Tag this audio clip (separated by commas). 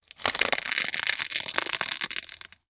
Crushing, Crackle